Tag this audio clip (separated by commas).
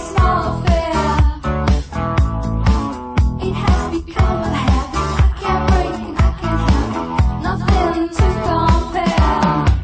Music